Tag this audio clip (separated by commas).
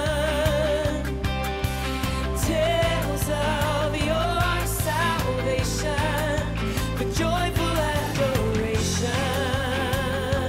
Music, Funk, Jazz